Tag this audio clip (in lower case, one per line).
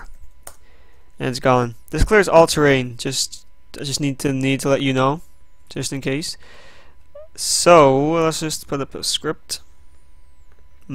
speech